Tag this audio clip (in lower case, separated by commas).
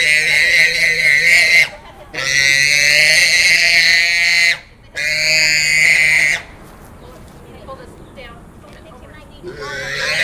speech, oink